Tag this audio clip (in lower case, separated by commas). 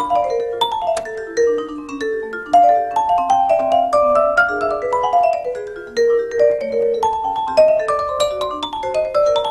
playing vibraphone